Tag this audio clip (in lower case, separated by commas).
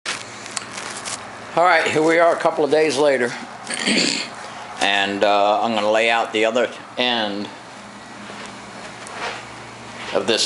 speech